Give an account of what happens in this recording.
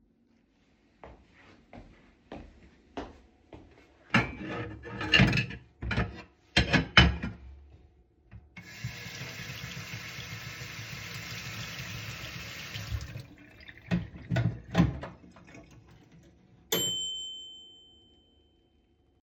I walked to my kitchen,put the dirty plates in the sink,turn on the water and microwave goes off.